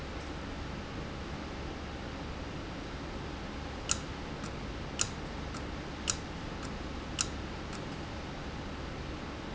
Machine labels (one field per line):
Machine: valve